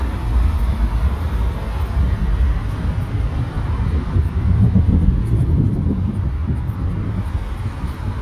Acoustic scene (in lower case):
street